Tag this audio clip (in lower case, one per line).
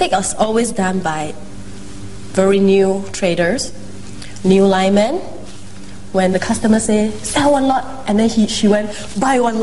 monologue
speech
inside a small room